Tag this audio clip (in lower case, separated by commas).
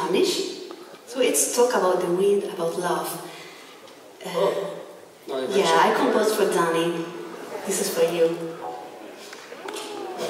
speech